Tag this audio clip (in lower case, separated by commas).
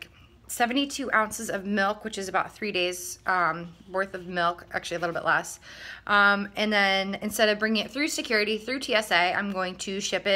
speech